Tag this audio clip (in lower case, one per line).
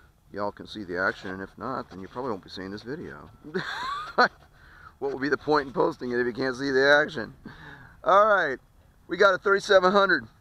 speech